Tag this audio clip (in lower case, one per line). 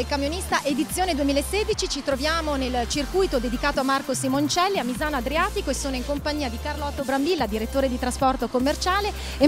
speech
music